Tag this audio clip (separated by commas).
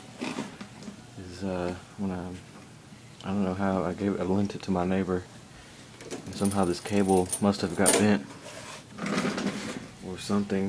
Speech